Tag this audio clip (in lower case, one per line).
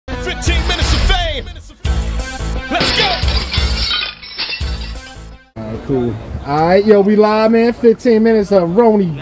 music
speech